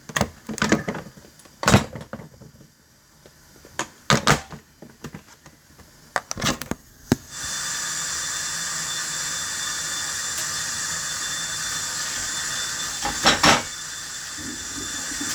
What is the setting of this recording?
kitchen